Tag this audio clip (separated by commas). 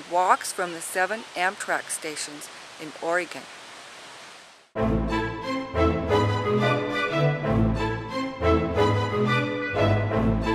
Speech, Music